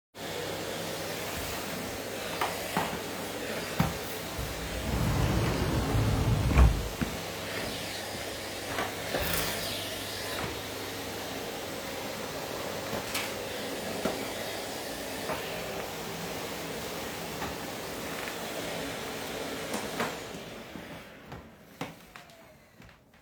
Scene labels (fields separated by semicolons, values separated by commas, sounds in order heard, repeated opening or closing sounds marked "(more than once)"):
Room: bedroom; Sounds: vacuum cleaner, wardrobe or drawer, footsteps